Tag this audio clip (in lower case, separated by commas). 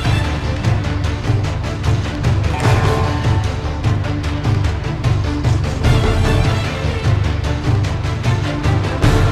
music